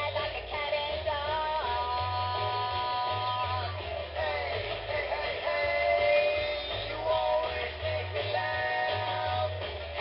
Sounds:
Jingle (music), Music

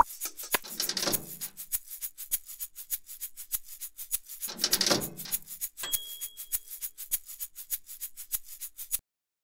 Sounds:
Music

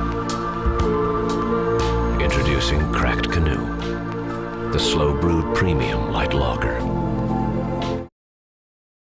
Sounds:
Speech, Music

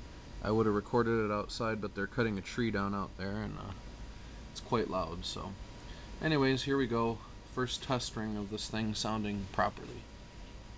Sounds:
Speech

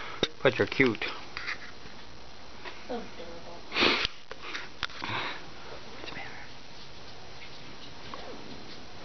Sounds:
Speech

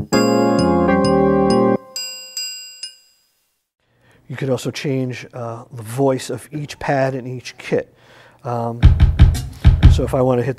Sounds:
Music, Speech, Musical instrument, Drum kit, Drum

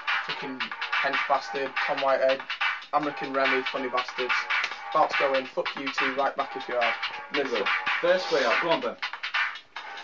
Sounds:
Speech, Music

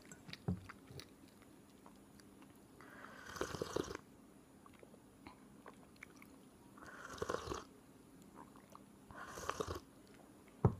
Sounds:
mastication

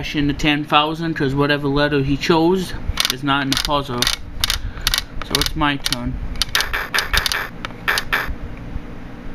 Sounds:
Speech

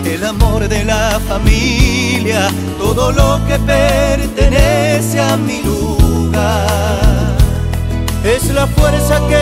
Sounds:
Soul music

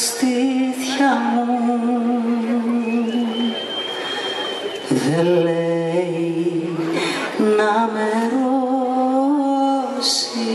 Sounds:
Speech

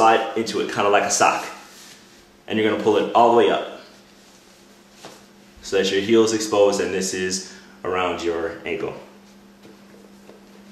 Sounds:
Speech

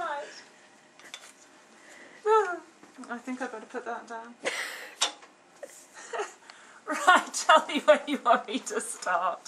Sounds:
inside a small room, Speech

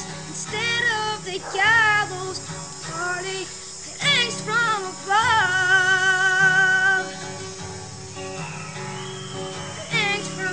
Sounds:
Music, Child singing

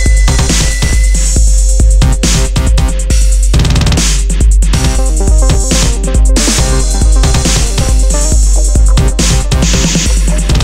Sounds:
Music

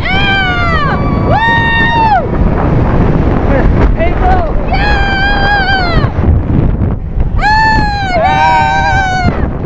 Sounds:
Wind noise (microphone), Speech

